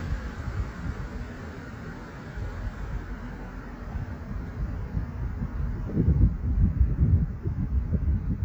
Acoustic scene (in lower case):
street